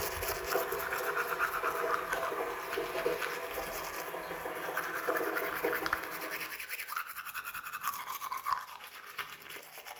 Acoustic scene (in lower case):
restroom